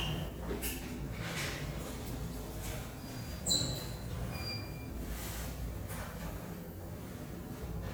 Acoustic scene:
elevator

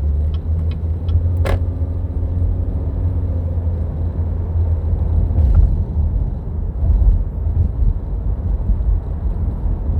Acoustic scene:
car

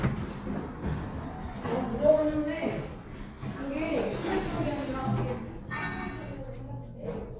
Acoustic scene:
elevator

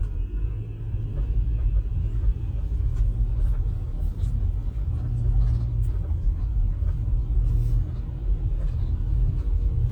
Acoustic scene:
car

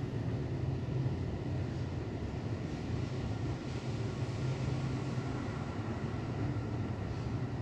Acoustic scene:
elevator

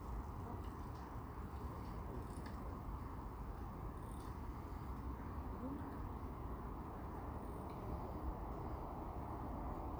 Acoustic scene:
park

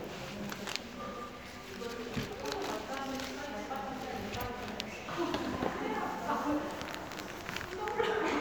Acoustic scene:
crowded indoor space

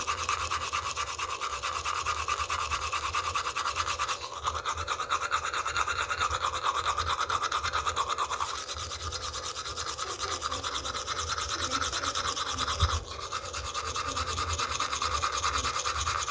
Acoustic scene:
restroom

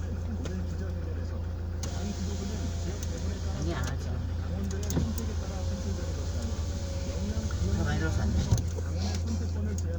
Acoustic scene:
car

